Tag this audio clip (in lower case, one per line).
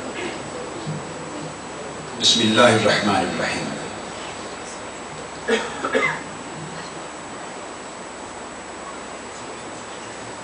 speech
man speaking